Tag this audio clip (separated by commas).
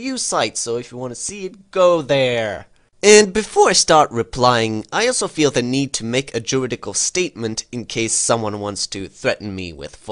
Speech